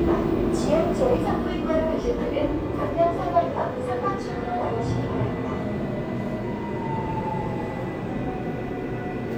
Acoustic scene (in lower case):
subway train